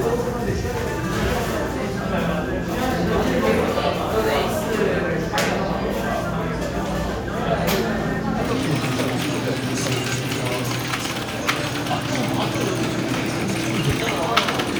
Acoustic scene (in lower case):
crowded indoor space